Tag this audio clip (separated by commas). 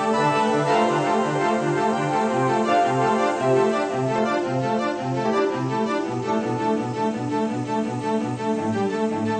Music